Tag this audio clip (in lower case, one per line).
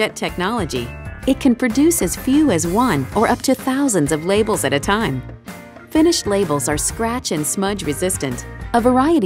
music
speech